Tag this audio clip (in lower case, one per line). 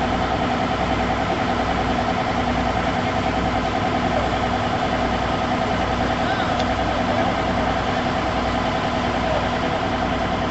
vehicle